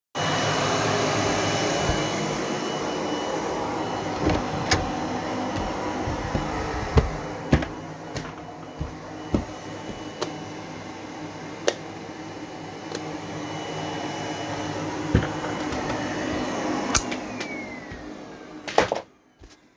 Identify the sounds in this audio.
vacuum cleaner, door, footsteps, light switch